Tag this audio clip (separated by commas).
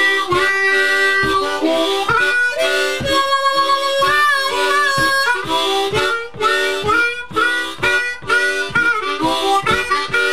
playing harmonica